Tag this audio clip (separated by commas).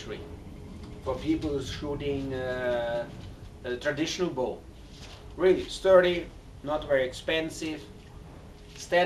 Speech, inside a small room